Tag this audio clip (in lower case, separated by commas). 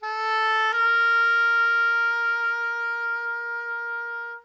music, musical instrument, woodwind instrument